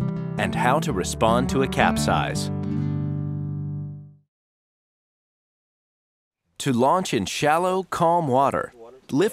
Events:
[0.01, 4.32] background noise
[0.26, 2.47] male speech
[6.31, 9.32] background noise
[6.50, 8.68] male speech

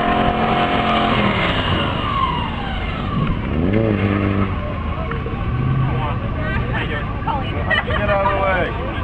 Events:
[0.00, 1.50] vroom
[0.00, 9.03] auto racing
[0.00, 9.03] wind
[0.92, 3.48] tire squeal
[3.31, 5.00] vroom
[4.54, 5.20] male speech
[4.54, 9.03] conversation
[5.76, 6.25] male speech
[6.35, 6.67] woman speaking
[6.70, 7.07] male speech
[7.22, 7.61] woman speaking
[7.52, 8.35] laughter
[7.88, 8.73] male speech

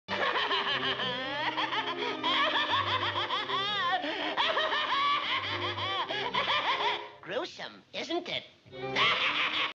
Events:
[0.05, 6.96] sobbing
[0.05, 7.17] music
[7.21, 7.77] male speech
[7.59, 8.62] background noise
[7.89, 8.51] male speech
[8.67, 9.70] music
[8.91, 9.70] sobbing

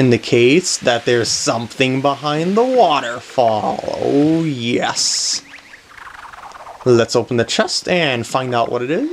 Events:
[0.00, 9.12] video game sound
[0.01, 5.35] water
[0.01, 3.17] man speaking
[3.35, 5.41] man speaking
[6.86, 9.12] man speaking

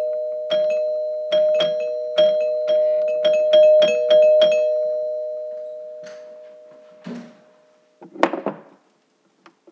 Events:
[0.00, 8.02] doorbell
[0.00, 9.65] background noise
[5.95, 6.30] generic impact sounds
[7.00, 7.47] generic impact sounds
[7.99, 8.61] generic impact sounds
[9.39, 9.57] generic impact sounds

